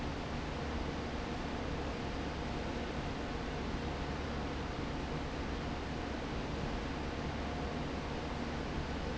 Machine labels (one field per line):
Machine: fan